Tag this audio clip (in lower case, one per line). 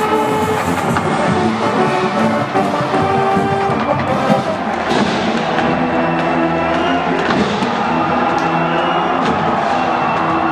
music